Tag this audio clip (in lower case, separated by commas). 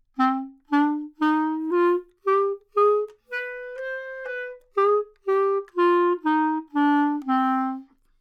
musical instrument, wind instrument, music